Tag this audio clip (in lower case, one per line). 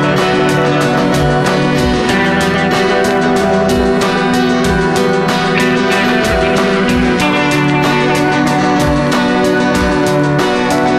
music